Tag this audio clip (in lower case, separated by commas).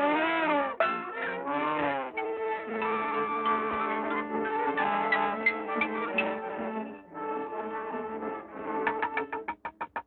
music